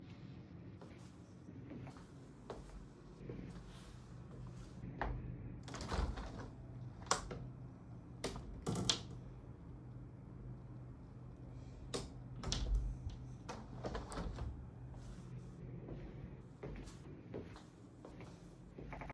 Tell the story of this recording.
I walked to the window opened it briefly then closed it.